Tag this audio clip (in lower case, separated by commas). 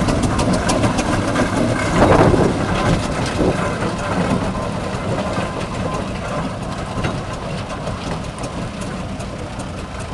heavy engine (low frequency), idling, engine, vehicle